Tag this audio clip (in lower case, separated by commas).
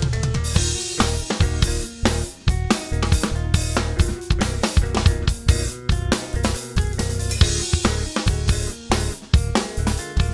bass drum, percussion, drum kit, snare drum, rimshot, drum